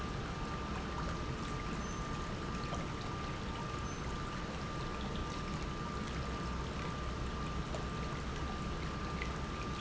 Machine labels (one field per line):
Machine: pump